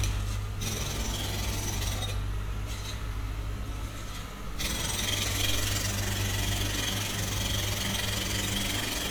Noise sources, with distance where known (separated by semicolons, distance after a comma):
jackhammer